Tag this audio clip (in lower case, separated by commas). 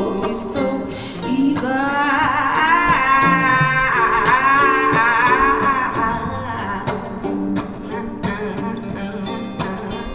singing, music